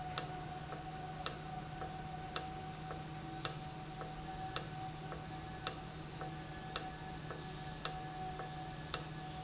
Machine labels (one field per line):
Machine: valve